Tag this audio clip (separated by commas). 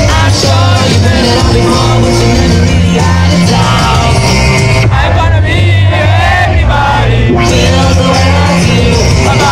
Music, Exciting music, Dance music